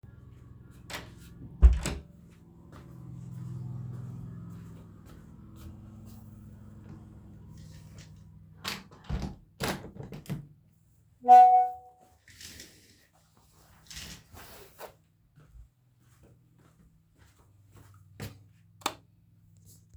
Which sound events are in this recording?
door, footsteps, window, light switch